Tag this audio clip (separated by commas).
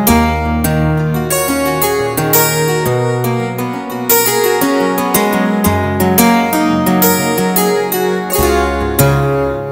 Music